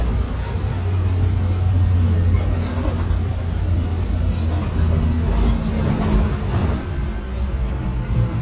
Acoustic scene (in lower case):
bus